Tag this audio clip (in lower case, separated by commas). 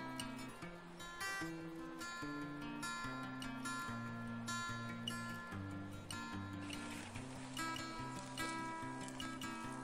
music